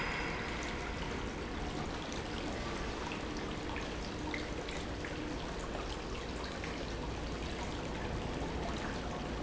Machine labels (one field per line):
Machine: pump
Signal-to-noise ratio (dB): -6 dB